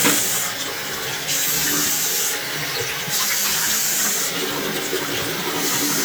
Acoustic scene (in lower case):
restroom